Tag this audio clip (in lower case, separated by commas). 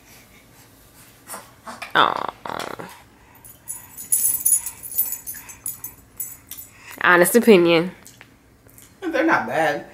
inside a small room, speech